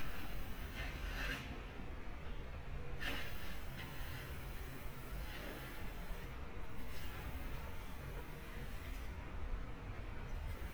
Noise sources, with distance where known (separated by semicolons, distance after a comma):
background noise